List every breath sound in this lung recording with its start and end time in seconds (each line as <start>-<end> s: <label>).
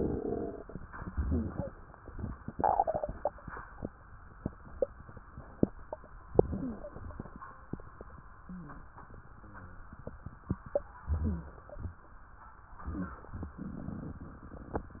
6.32-7.19 s: inhalation
6.58-6.91 s: wheeze
11.10-11.59 s: wheeze
11.10-11.97 s: inhalation